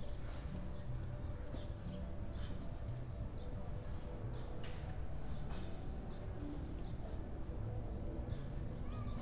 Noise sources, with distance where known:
music from an unclear source

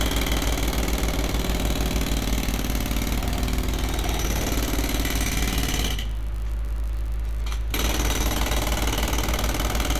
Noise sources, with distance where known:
jackhammer, near

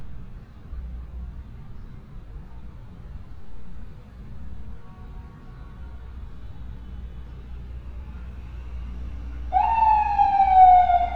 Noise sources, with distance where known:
siren, near

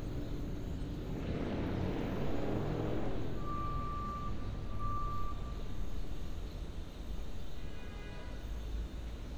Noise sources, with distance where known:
medium-sounding engine
car horn, far
reverse beeper

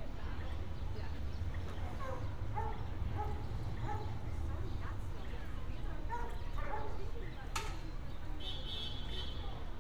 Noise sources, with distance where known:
car horn
person or small group talking, near
dog barking or whining, far

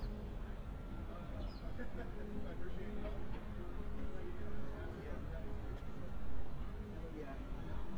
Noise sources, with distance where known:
music from an unclear source, near
person or small group talking, near

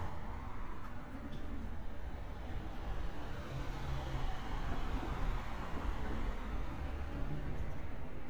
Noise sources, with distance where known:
medium-sounding engine, near

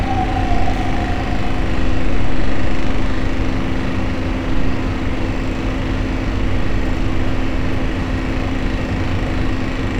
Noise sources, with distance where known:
jackhammer

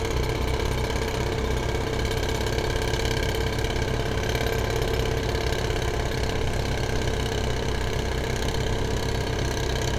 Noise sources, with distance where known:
jackhammer, near

